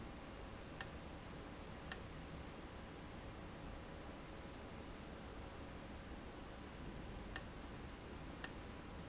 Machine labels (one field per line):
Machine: valve